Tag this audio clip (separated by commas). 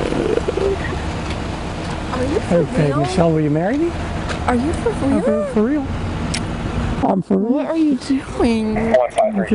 Speech